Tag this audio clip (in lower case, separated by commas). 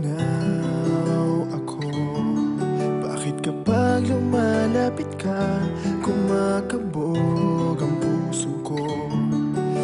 music, soul music